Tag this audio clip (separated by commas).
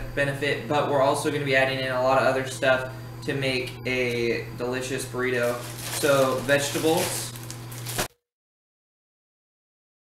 Speech